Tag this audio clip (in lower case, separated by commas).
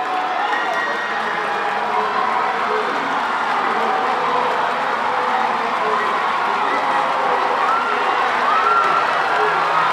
speech, outside, urban or man-made, run